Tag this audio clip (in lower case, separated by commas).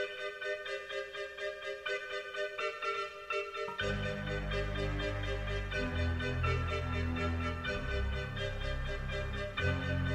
music